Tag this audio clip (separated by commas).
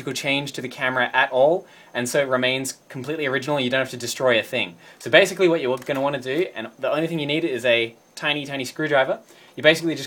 Speech